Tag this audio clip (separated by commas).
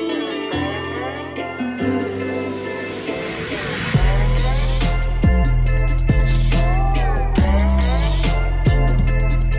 Echo